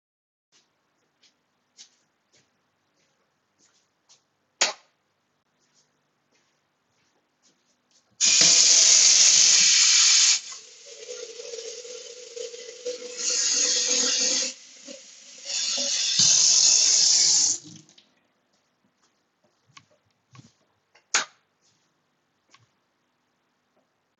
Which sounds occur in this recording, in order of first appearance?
footsteps, light switch, running water